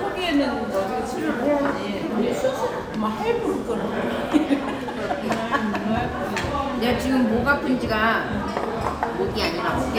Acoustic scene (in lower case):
restaurant